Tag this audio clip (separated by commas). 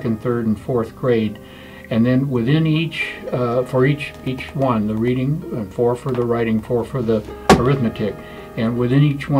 Speech, Music